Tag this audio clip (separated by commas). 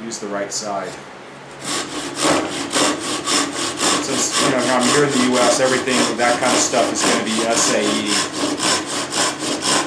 Speech, Wood, Tools, inside a small room